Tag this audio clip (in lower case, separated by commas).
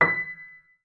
music, musical instrument, keyboard (musical), piano